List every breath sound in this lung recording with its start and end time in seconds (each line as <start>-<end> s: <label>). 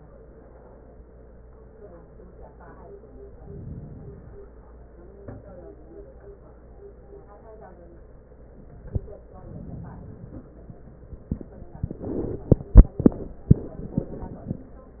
3.19-4.49 s: inhalation
9.30-10.47 s: inhalation